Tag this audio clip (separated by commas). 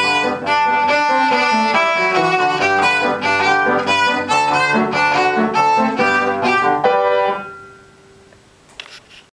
Music, Musical instrument, Violin